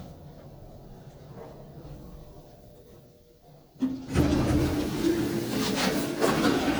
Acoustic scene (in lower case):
elevator